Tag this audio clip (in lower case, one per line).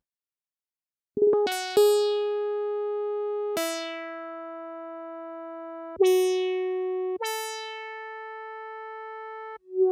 music